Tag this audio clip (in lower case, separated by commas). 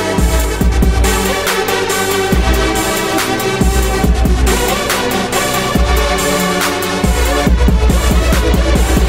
music